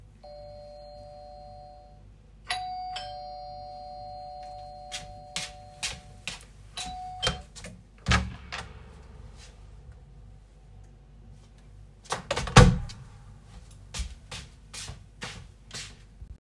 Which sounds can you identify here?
bell ringing, footsteps, door